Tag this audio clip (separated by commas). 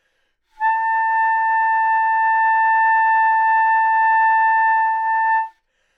Musical instrument, Music, Wind instrument